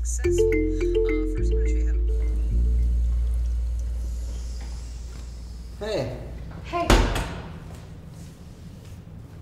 Male and female voice with a cell phone ringing